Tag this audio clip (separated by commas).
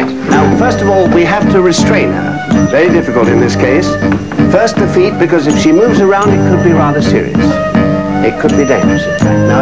Speech, Music